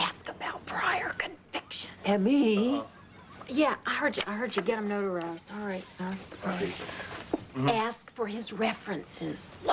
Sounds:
Speech

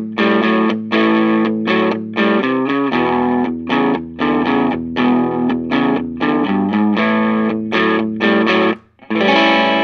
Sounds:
Musical instrument, Music, slide guitar

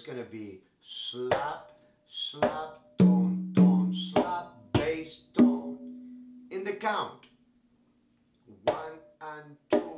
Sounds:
playing congas

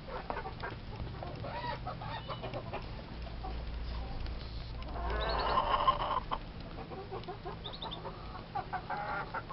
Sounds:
chicken clucking, Fowl, Cluck

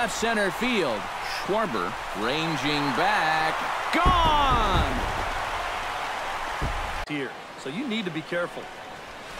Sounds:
Speech

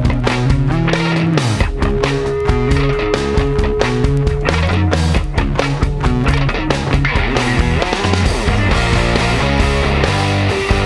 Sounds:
Music

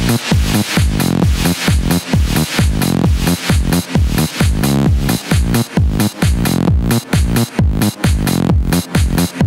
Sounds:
Music

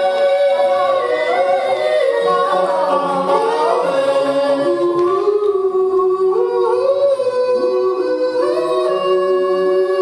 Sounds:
inside a large room or hall

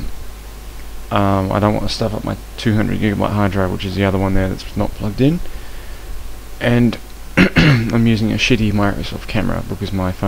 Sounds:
Speech

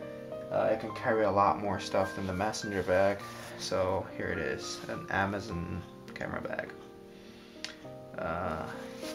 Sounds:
Music, Speech

